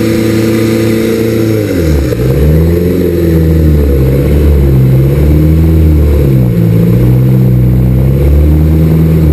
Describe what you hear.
A boat engine roaring